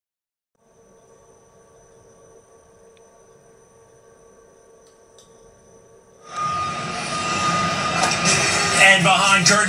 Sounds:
vehicle, television

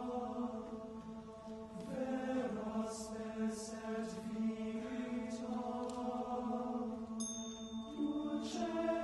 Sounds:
male singing, choir

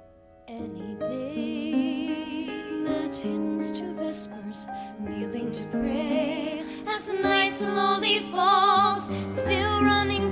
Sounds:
music

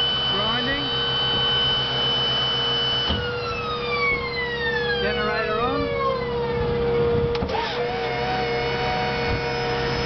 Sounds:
ambulance (siren), speech, outside, urban or man-made, vehicle

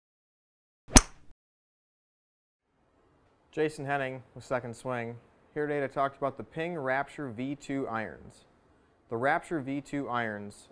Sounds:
speech

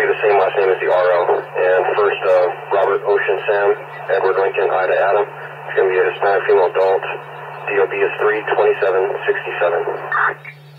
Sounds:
speech

